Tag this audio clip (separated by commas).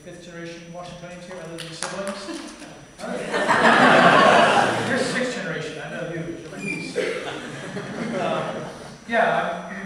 Speech